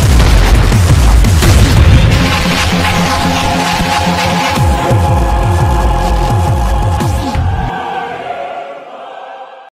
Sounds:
Music

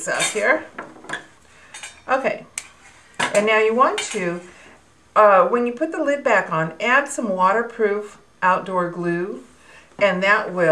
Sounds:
Speech

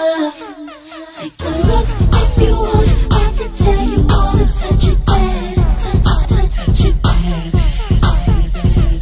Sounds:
Music

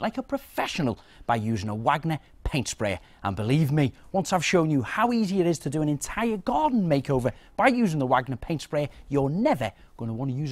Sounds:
Speech

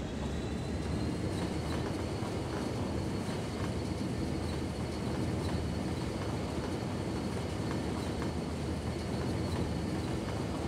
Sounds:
Train

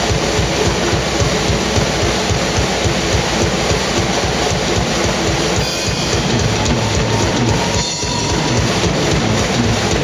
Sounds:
inside a large room or hall, Music, Drum, Musical instrument, Drum kit

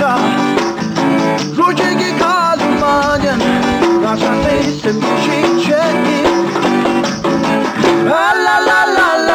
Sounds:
Singing, Music

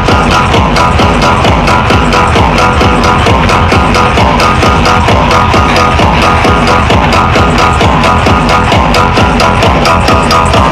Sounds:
Music, Field recording

